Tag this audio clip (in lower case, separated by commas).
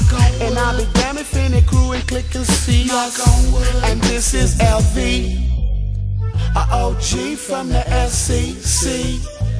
music, reggae, rapping, hip hop music